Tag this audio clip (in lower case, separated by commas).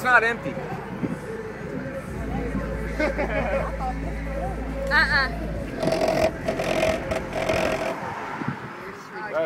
speech